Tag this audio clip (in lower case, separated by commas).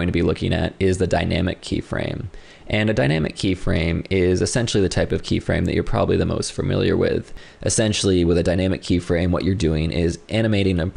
speech